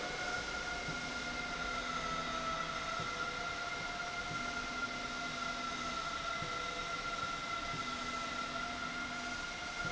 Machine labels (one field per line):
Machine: slide rail